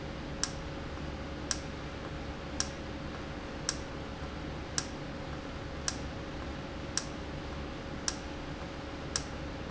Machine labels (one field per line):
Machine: valve